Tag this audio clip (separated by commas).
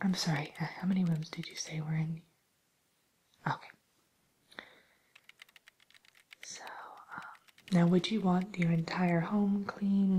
Speech, Whispering